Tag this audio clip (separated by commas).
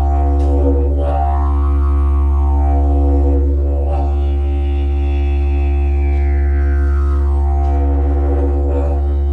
Musical instrument, Music, Didgeridoo